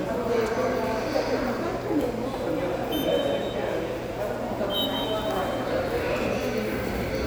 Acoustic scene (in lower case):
subway station